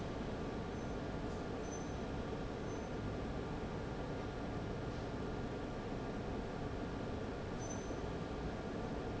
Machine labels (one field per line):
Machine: fan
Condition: abnormal